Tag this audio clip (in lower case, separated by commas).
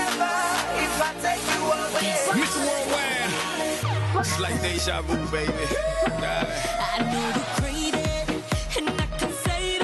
music, rapping, singing